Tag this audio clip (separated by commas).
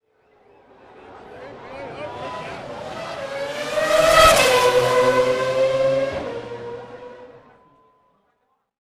Car, Motor vehicle (road), Vehicle, auto racing, Engine, Accelerating